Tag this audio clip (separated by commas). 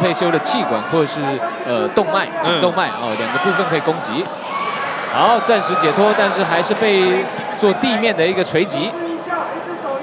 Speech, inside a large room or hall